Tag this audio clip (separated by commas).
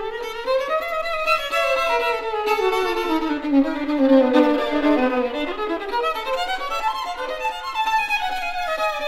fiddle, Bowed string instrument